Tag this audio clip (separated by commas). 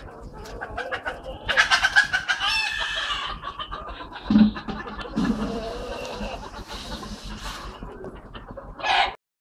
Bird